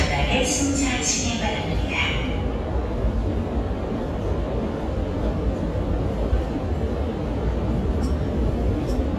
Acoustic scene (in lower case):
subway station